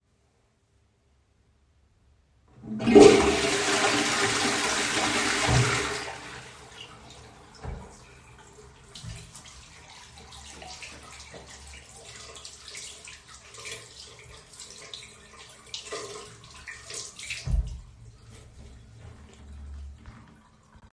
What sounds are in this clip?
toilet flushing, running water